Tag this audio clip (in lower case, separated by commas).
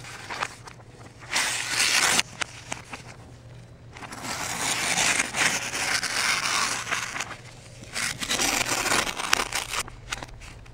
ripping paper